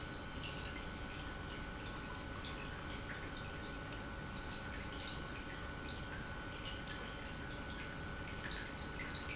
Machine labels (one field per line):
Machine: pump